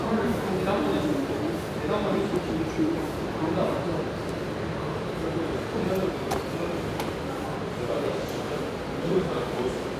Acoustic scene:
subway station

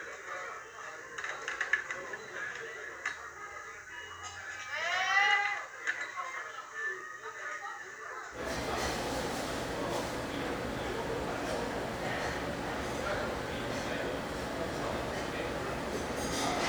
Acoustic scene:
restaurant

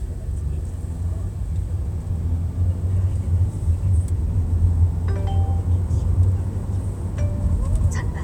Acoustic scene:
car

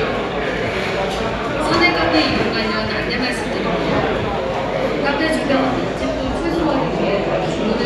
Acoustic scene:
crowded indoor space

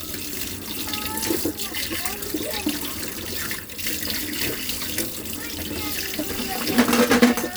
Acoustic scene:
kitchen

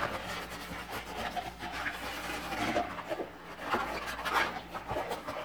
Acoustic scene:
kitchen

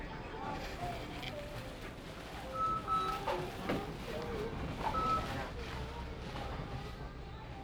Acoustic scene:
crowded indoor space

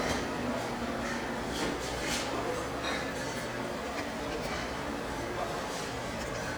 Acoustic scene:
restaurant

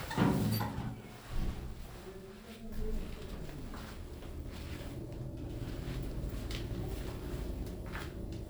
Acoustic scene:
elevator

